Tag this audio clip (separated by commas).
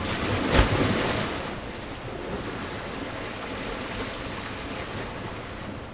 Water, Waves, Ocean